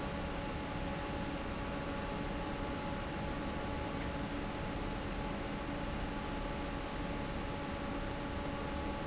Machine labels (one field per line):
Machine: fan